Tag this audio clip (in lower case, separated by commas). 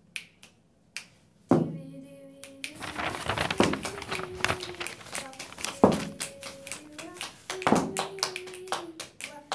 wood